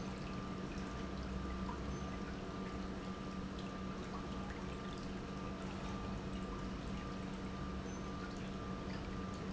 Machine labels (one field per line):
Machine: pump